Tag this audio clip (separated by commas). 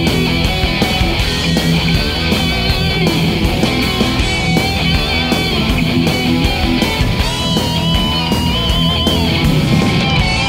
Plucked string instrument, Electric guitar, Musical instrument, Music